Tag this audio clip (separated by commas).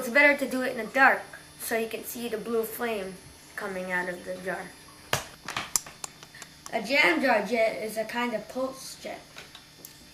Speech